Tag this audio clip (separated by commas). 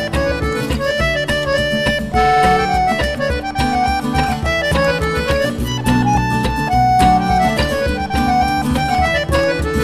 Musical instrument, Music, Violin